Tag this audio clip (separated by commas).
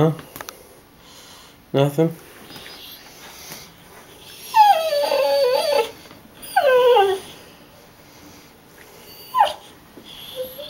pets, Dog, Animal, Speech